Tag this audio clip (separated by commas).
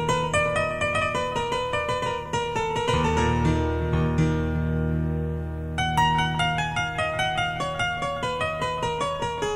Electric piano